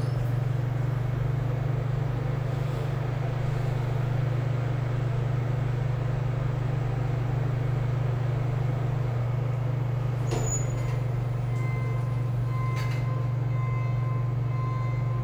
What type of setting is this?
elevator